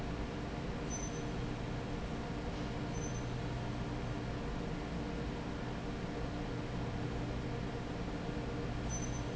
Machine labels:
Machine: fan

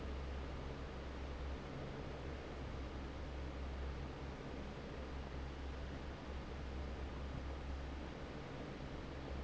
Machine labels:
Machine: fan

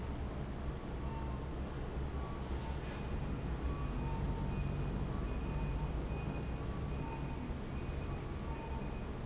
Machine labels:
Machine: fan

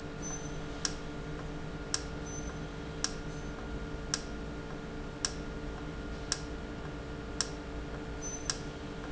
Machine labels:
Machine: valve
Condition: normal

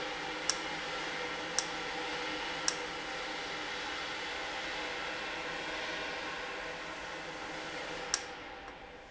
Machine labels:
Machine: valve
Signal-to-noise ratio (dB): -6 dB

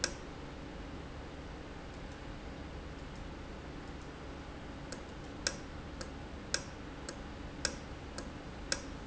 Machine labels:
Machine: valve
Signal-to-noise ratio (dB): 0 dB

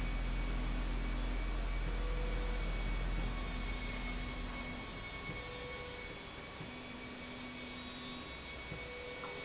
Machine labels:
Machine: slide rail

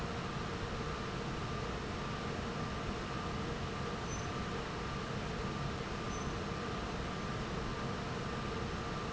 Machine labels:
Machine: fan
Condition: normal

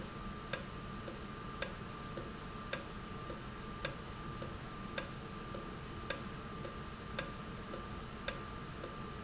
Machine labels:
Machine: valve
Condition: normal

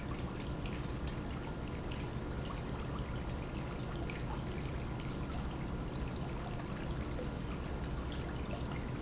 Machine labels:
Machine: pump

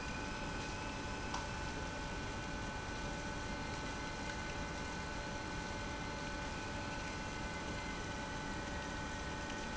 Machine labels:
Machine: pump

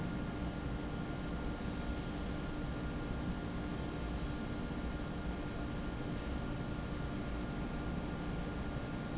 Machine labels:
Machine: fan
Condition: normal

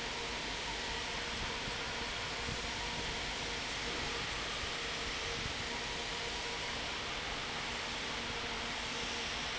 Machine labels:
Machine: fan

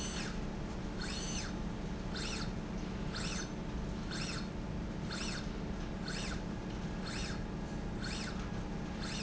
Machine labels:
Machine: slide rail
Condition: normal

